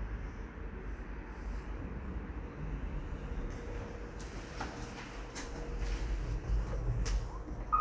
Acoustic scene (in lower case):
elevator